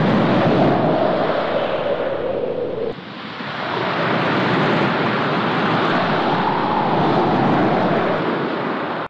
Winds blow past the microphone while high waves crash in the background